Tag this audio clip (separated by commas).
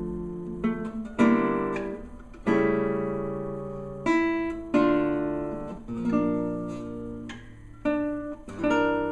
Strum, Musical instrument, playing acoustic guitar, Acoustic guitar, Music, Plucked string instrument, Guitar